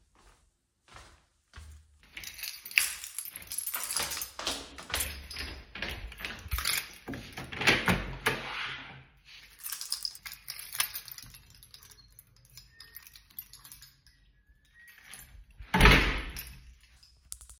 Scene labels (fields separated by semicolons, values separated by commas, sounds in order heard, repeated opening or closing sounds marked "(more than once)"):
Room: stairwell; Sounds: footsteps, keys, door (more than once)